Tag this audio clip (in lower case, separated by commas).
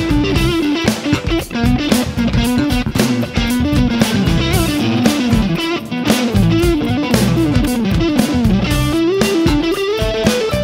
electric guitar, music, effects unit